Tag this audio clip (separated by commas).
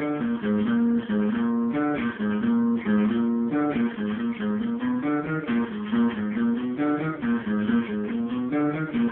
Music